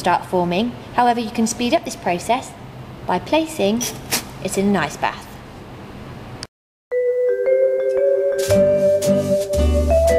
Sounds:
Music, Speech

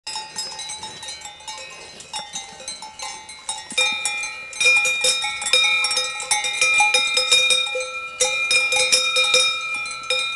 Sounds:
cattle

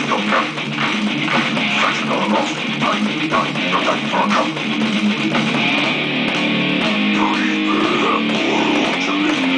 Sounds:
Guitar, Electric guitar, Music, Plucked string instrument, Musical instrument

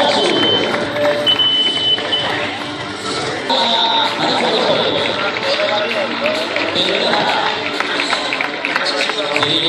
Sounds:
Speech, Music, outside, urban or man-made

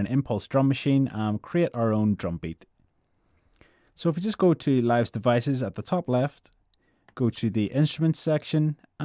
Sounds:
Speech

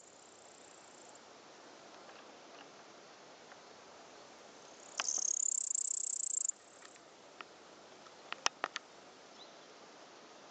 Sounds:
cricket chirping

